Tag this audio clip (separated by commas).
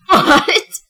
Human voice, Laughter